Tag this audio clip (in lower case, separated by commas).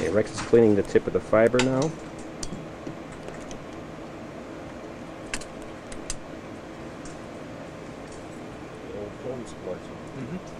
inside a small room, speech